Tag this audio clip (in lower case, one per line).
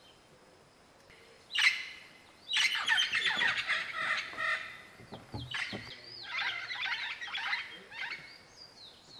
bird call
tweet
bird